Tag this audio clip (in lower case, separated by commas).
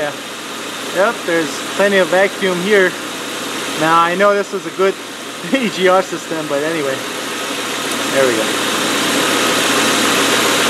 speech, vehicle, engine